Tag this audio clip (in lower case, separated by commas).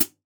cymbal, hi-hat, percussion, musical instrument, music